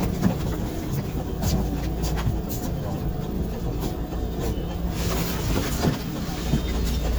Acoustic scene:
bus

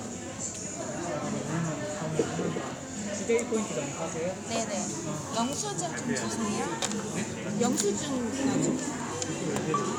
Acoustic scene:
cafe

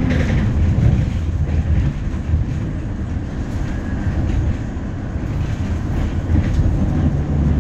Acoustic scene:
bus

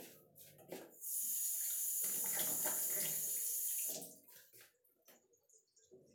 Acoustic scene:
restroom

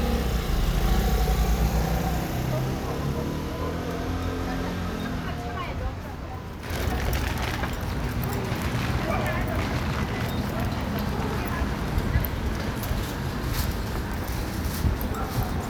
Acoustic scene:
residential area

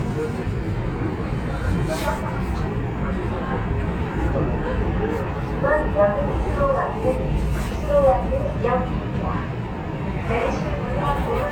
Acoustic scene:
subway train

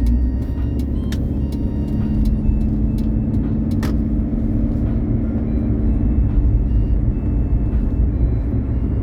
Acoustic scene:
car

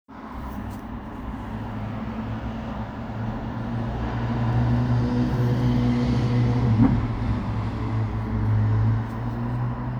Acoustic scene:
residential area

